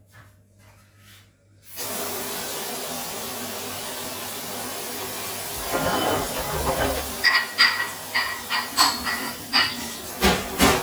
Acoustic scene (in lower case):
kitchen